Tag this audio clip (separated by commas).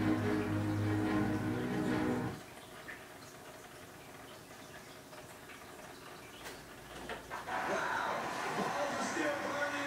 Bathtub (filling or washing), Music, Sink (filling or washing), Speech